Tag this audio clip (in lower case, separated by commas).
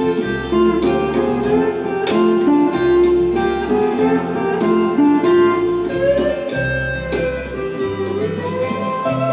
bowed string instrument, music